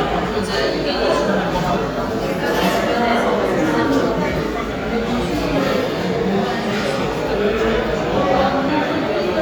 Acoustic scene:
crowded indoor space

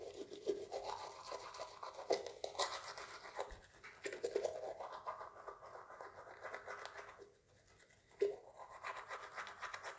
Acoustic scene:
restroom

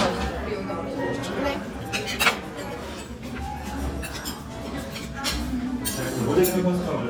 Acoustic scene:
restaurant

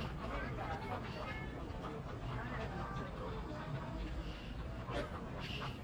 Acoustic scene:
crowded indoor space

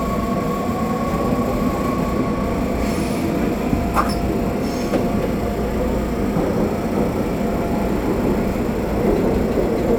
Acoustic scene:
subway train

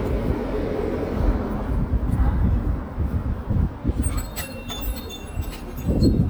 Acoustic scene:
residential area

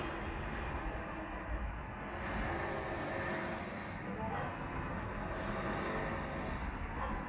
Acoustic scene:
residential area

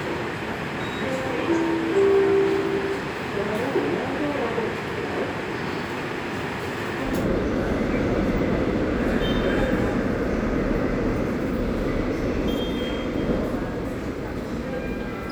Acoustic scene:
subway station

